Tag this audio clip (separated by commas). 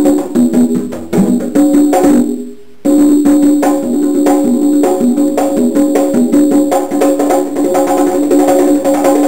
Wood block, Music